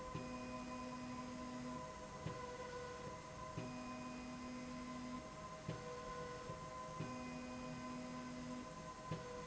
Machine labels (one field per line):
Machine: slide rail